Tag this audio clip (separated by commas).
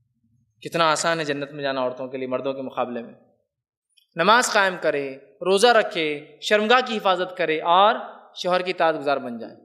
Speech